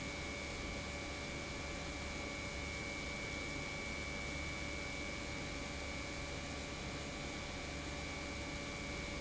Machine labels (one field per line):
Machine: pump